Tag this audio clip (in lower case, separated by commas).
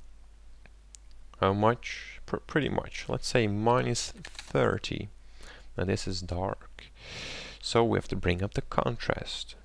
speech